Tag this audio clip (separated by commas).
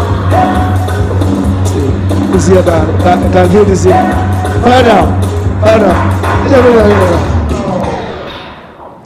Music, Speech